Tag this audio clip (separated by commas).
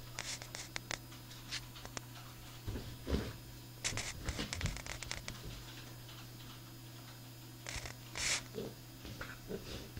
Animal, Cat, Caterwaul, pets